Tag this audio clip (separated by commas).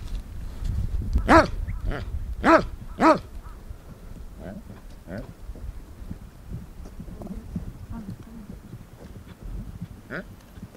Animal, Clip-clop, Horse